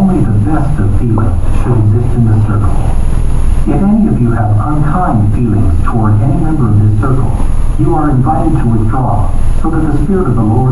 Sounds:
speech

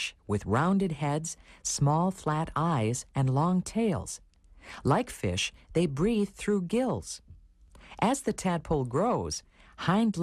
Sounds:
speech

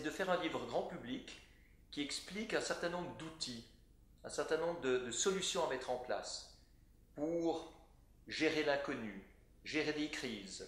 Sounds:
speech

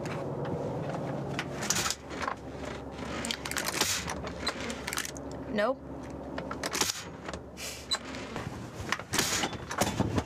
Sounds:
inside a small room
speech

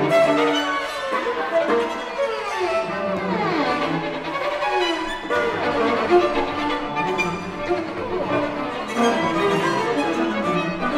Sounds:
bowed string instrument
violin

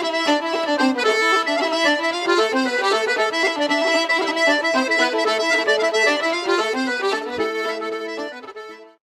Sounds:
middle eastern music
tender music
funk
music
ska
exciting music

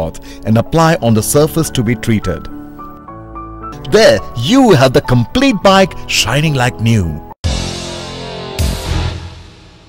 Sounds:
music
speech

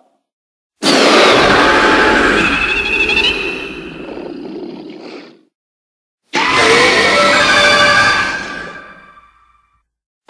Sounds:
sound effect

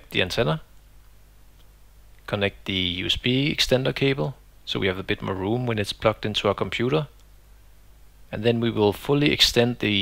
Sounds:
speech

